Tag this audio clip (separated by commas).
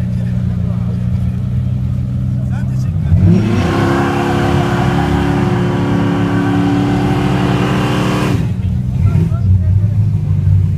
Speech